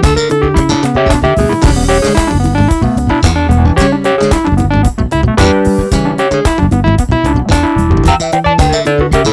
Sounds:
piano
electric piano
keyboard (musical)
music
musical instrument

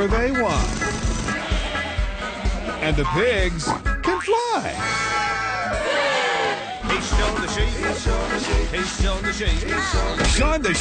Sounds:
speech
music

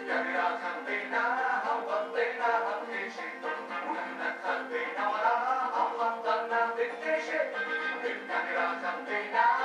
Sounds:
music

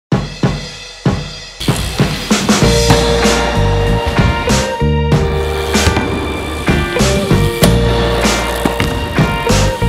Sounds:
vehicle
drum kit
bicycle
cymbal
bass drum

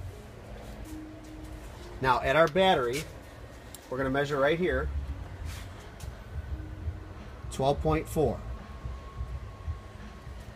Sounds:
speech

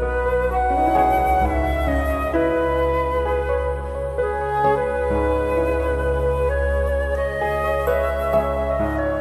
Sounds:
sad music
music

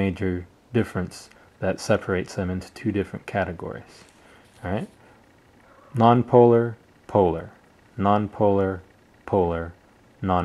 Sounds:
speech

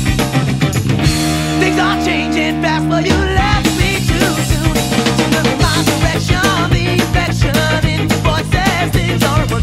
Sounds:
music
psychedelic rock

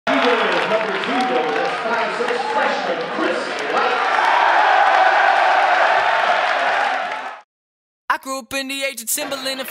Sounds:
speech

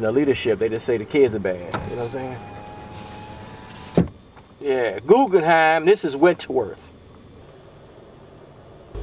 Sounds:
vehicle
speech
car
power windows

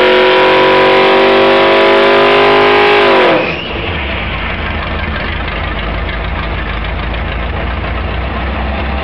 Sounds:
medium engine (mid frequency)
engine

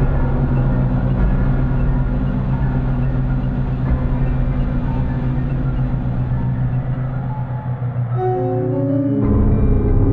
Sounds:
music

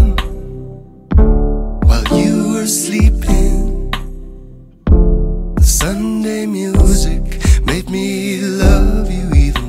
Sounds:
music

